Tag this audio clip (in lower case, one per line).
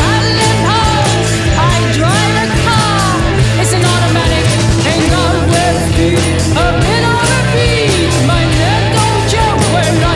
music